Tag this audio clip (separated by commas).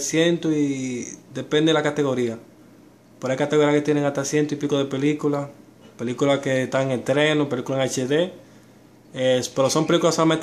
Speech